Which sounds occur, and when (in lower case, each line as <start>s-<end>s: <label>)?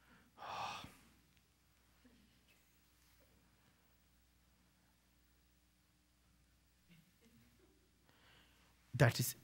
0.0s-0.3s: breathing
0.0s-9.4s: background noise
0.3s-0.9s: sigh
1.3s-1.4s: clicking
2.0s-2.2s: human sounds
2.4s-2.6s: human sounds
2.9s-3.3s: human sounds
6.9s-7.0s: human sounds
7.2s-7.8s: human sounds
8.1s-8.7s: breathing
8.9s-9.4s: male speech